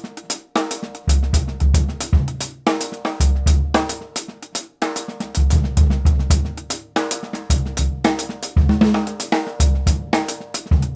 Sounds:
playing timbales

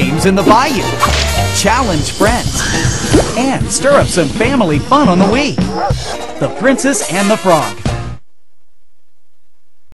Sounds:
speech, music

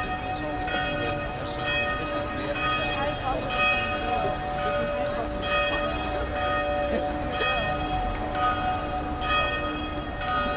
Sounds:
church bell ringing

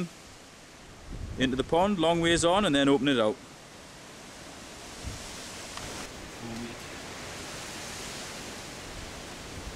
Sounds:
outside, rural or natural, speech

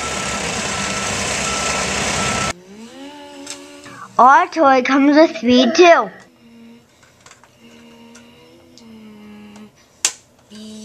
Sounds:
speech

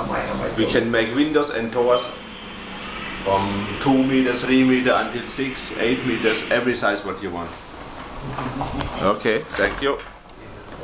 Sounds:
speech, sliding door

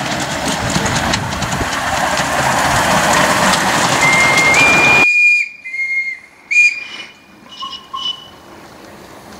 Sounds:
whistle

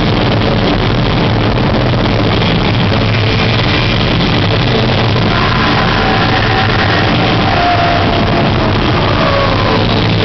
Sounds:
white noise, music, vibration

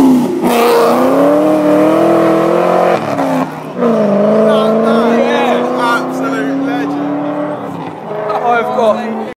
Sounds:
speech, car passing by, car, vehicle, motor vehicle (road)

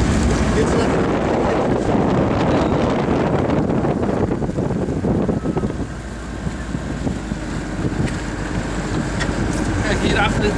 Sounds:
boat, speedboat, wind, wind noise (microphone)

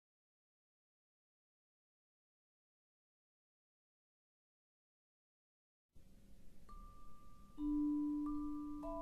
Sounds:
xylophone, music, musical instrument, percussion

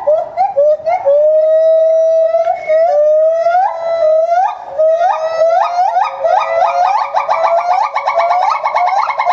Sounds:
gibbon howling

